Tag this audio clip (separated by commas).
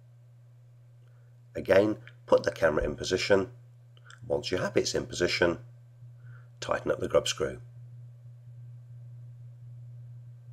Speech